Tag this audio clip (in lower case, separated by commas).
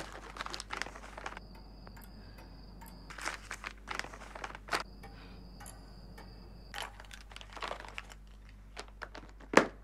crinkling